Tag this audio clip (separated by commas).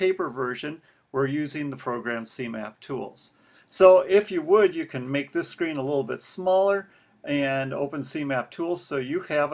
Speech